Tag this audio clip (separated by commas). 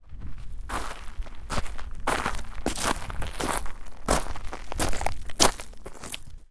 footsteps